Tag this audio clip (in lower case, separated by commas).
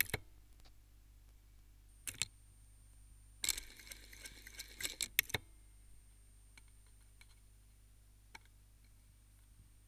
mechanisms